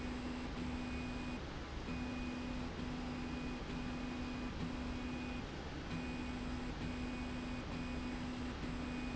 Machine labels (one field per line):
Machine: slide rail